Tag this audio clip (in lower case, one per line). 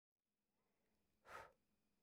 breathing
respiratory sounds